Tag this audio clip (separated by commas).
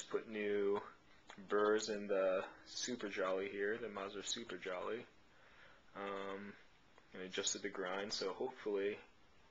Speech